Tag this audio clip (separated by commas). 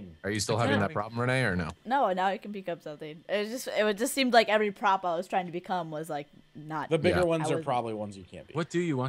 Speech